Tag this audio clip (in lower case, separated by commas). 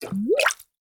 gurgling, water